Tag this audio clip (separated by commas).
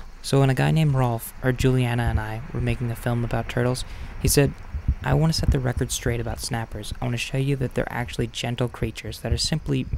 people finger snapping